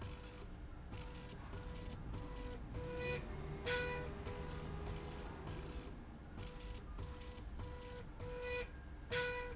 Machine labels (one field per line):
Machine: slide rail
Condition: normal